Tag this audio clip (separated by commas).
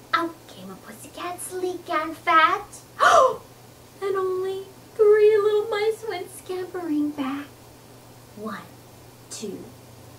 Speech